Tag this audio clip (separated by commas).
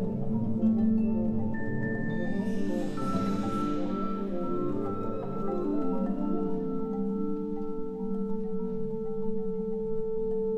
Music